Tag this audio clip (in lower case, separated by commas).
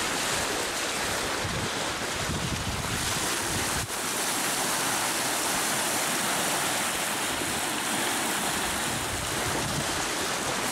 wind, sailing ship, water vehicle, vehicle, sailing